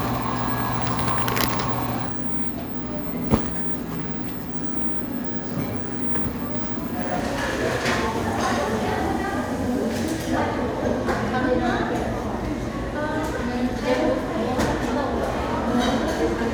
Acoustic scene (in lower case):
cafe